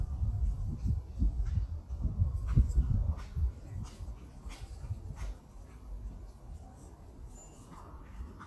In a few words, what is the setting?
park